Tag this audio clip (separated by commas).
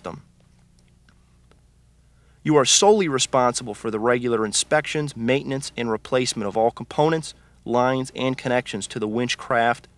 Speech